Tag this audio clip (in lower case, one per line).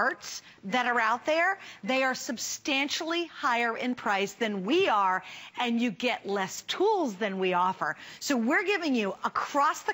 speech